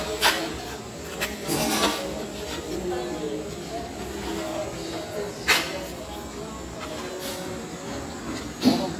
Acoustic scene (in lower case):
restaurant